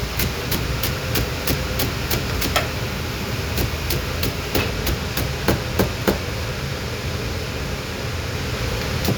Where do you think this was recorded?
in a kitchen